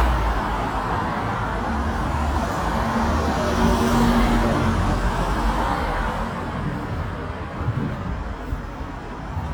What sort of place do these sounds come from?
street